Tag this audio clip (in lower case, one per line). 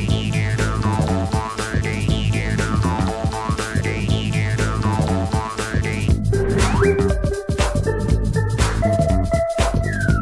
sampler
music